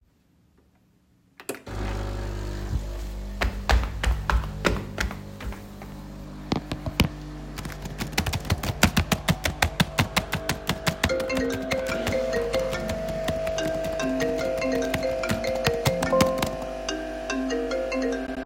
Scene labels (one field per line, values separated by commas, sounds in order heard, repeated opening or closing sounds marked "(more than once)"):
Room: kitchen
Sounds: coffee machine, footsteps, keyboard typing, phone ringing